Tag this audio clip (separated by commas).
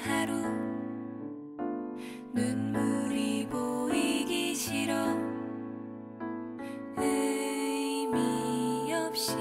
Music